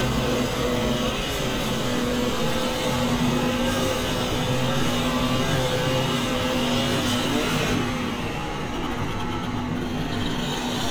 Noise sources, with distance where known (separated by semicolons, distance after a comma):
unidentified powered saw, near